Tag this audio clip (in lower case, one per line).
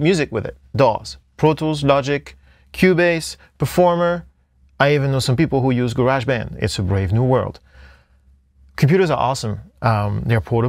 speech